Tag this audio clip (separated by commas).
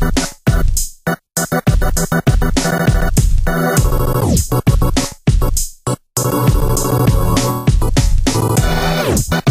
Electronica, Music